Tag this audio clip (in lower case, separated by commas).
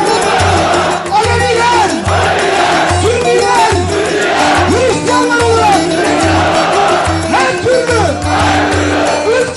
speech, music